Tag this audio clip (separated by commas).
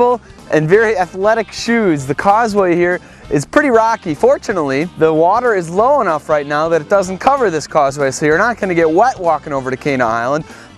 Music, Speech